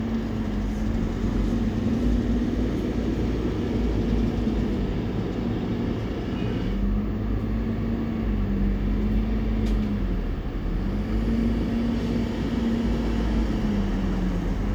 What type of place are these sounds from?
street